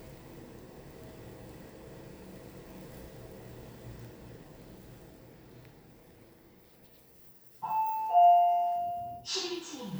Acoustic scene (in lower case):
elevator